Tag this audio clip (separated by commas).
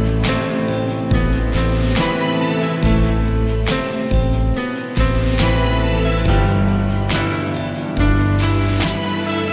Dubstep, Music